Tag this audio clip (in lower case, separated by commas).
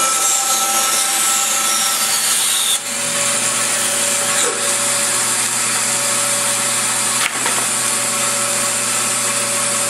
drill, wood